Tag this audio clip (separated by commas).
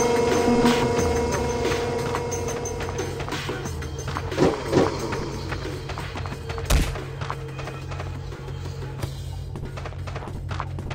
Music